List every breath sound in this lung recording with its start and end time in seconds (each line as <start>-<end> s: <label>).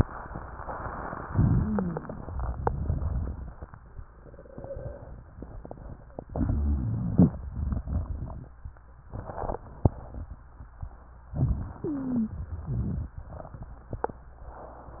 1.25-2.01 s: inhalation
1.25-2.01 s: rhonchi
2.07-3.74 s: crackles
6.32-7.25 s: inhalation
6.32-7.25 s: rhonchi
7.42-8.63 s: crackles
11.33-12.43 s: inhalation
11.78-12.43 s: wheeze
12.56-13.95 s: exhalation
12.56-13.95 s: crackles